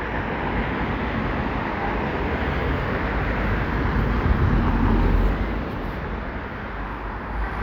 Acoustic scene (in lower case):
street